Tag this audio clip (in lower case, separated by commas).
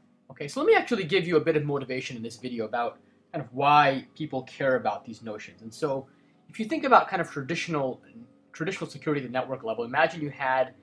speech